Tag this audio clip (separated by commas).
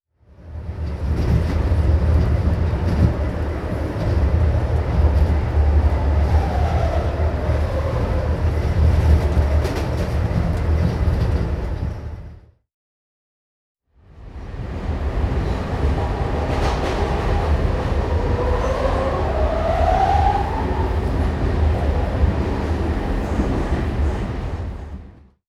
Vehicle, Rail transport, Train